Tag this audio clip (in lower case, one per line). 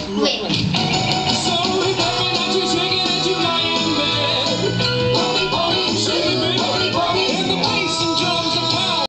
speech
music